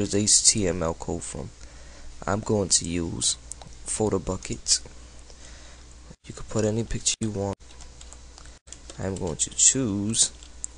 A man speaking and typing noise